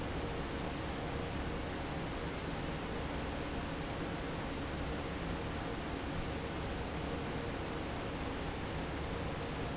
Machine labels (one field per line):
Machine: fan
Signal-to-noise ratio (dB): -6 dB